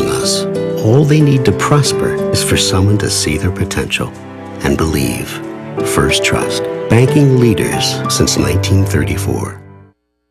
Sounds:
speech, music

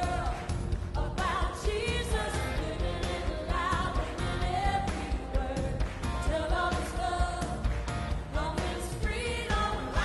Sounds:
music

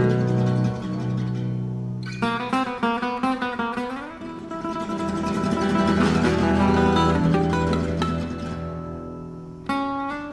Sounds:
music, jazz

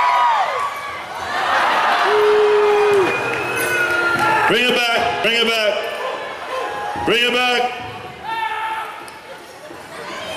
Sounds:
speech

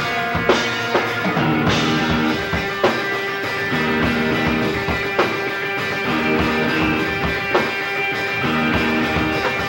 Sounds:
music

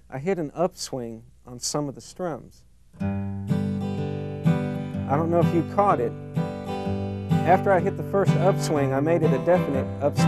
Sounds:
guitar, acoustic guitar, musical instrument, music, speech

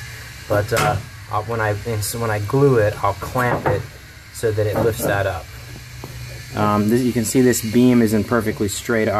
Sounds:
wood, speech

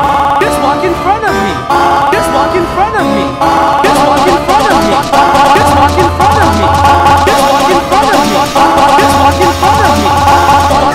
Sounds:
speech, music

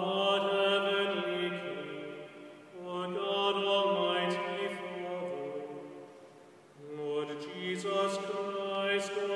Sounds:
mantra

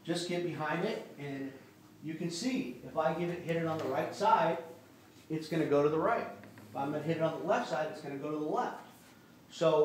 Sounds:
striking pool

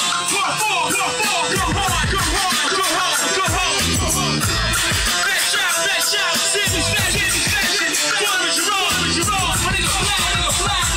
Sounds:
music

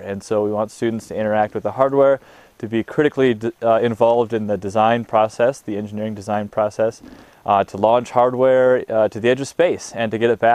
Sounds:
speech

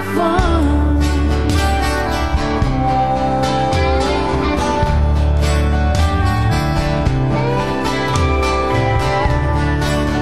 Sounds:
country, music

